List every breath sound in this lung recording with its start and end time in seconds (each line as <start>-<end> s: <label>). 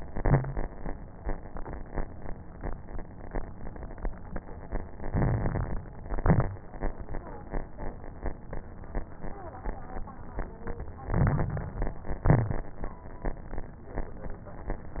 0.00-0.41 s: exhalation
0.00-0.41 s: crackles
5.07-5.82 s: inhalation
5.07-5.82 s: crackles
6.04-6.58 s: exhalation
6.04-6.58 s: crackles
11.10-11.84 s: inhalation
11.10-11.84 s: crackles
12.25-12.79 s: exhalation
12.25-12.79 s: crackles